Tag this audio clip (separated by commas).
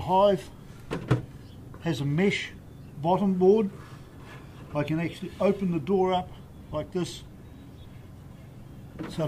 Speech